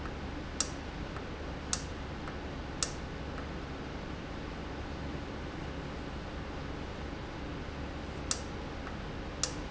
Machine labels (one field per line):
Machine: valve